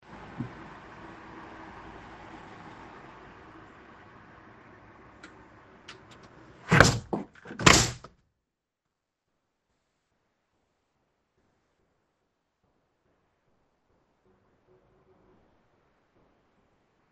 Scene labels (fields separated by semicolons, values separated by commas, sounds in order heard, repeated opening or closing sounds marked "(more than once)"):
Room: living room; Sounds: window (more than once)